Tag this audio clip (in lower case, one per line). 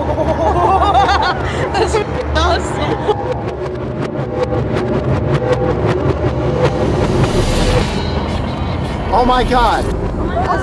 music
speech